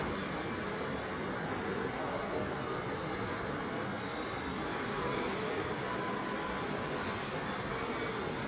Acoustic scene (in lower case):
subway station